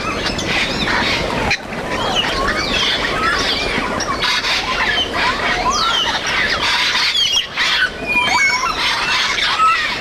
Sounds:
bird squawking

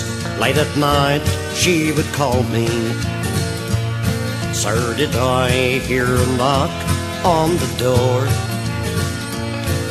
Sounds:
music

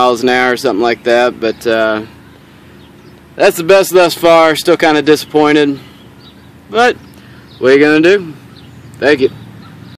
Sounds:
speech

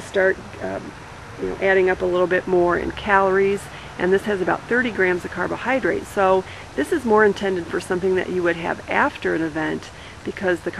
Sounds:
outside, rural or natural
speech

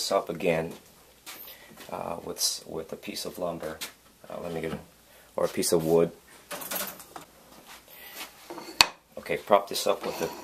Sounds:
wood

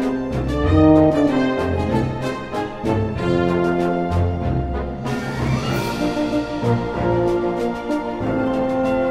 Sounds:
trombone
orchestra
brass instrument
music

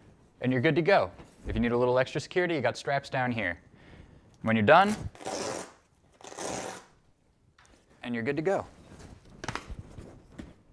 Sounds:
speech

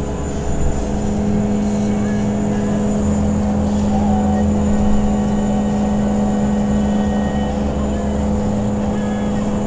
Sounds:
car
vehicle

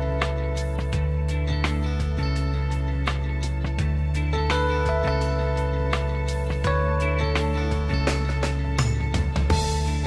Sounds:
music

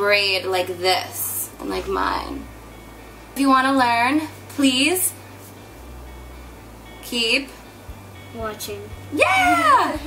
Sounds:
speech
music

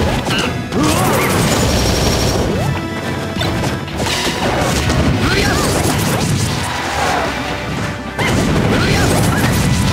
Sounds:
music

